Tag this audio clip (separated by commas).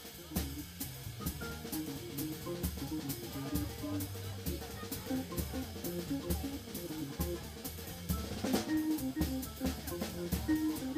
Speech, Music